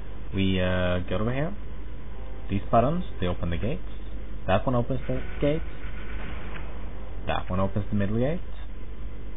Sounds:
speech

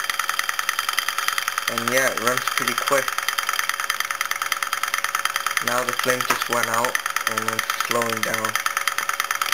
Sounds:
speech, medium engine (mid frequency), engine

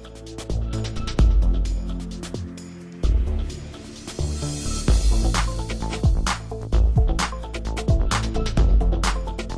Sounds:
music

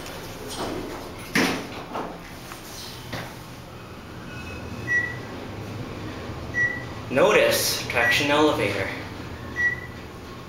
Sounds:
speech

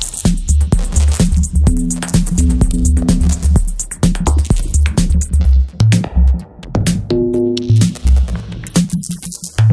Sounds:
synthesizer, drum machine, music

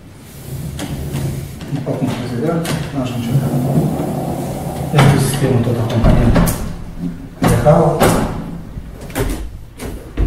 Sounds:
sliding door

